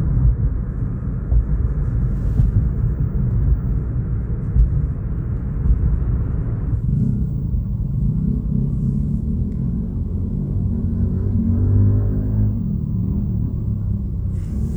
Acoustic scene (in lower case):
car